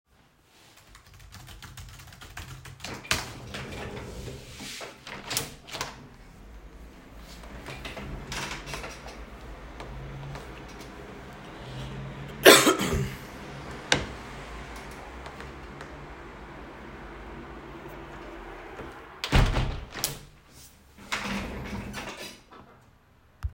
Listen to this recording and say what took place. While sitting on my computer chair, I was typing on the keyboard. I rolled with the chair toward the window and opened it. In the background some cars could be heard passing by. I then closed the window and rolled back with the chair to my desk.